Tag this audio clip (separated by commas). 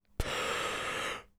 Breathing, Respiratory sounds